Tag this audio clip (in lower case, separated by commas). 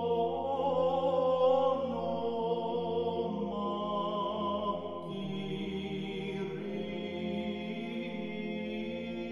mantra